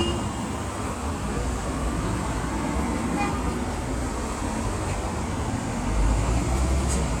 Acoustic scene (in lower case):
street